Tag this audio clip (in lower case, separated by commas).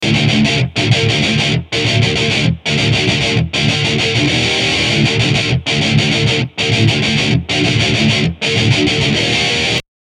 musical instrument, guitar, music, plucked string instrument